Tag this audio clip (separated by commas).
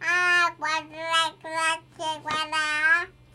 Speech, Human voice